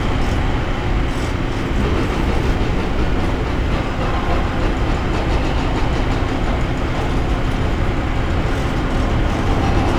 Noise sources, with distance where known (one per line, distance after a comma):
unidentified impact machinery, far